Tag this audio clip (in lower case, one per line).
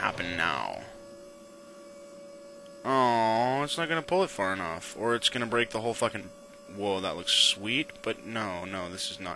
hum